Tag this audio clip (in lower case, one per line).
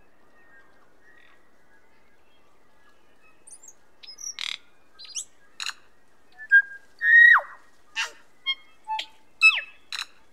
bird squawking